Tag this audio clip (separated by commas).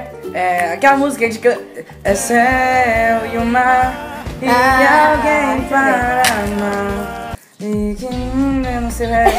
people humming